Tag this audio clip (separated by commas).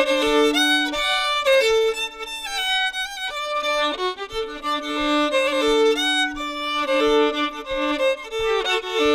Music, Bluegrass, Country